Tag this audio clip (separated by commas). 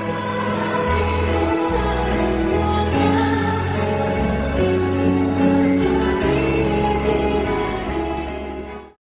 Music, Female singing